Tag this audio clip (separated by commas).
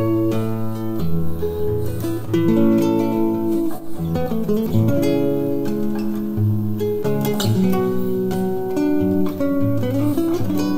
Guitar, Musical instrument, Plucked string instrument, Music, Strum, Acoustic guitar